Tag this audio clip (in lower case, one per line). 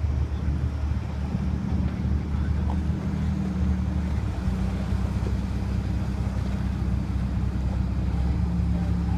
ship
vehicle
water vehicle